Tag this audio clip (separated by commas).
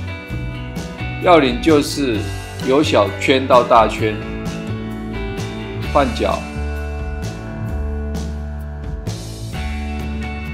cell phone buzzing